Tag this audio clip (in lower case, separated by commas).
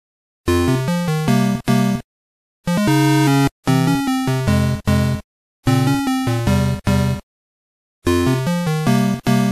music